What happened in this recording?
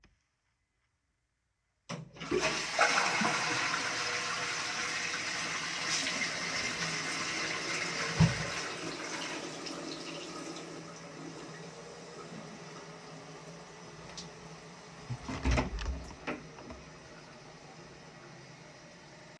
I flushed the toilet and washed my hands, after that i opened the door to leave the toilet.